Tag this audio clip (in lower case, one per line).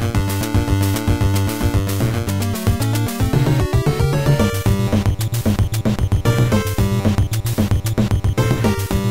video game music
music